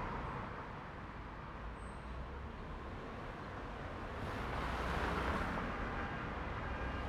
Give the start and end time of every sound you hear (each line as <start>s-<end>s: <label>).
0.0s-7.1s: car
0.0s-7.1s: car wheels rolling
5.6s-7.1s: unclassified sound